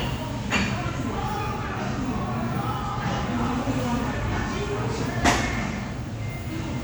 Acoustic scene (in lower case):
crowded indoor space